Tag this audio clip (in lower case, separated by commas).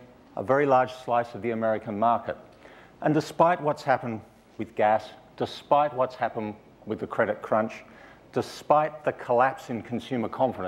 speech